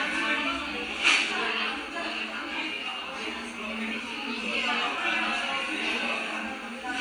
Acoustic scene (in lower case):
crowded indoor space